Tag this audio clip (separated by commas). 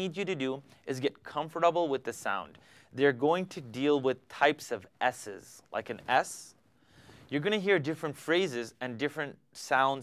Speech